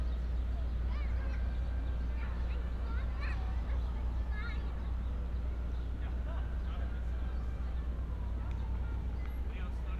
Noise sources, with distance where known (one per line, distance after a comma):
siren, far
person or small group talking